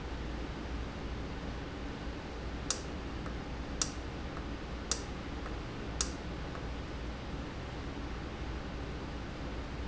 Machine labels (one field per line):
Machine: valve